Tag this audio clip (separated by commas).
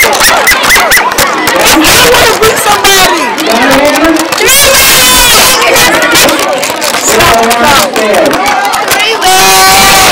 Speech, kid speaking, inside a large room or hall